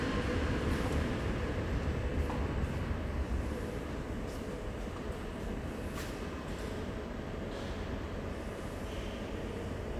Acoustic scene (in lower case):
subway station